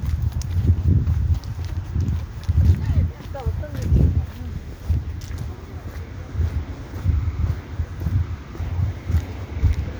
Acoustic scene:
residential area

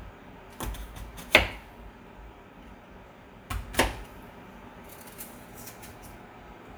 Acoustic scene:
kitchen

